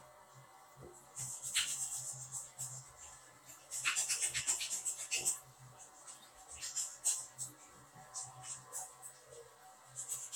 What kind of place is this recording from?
restroom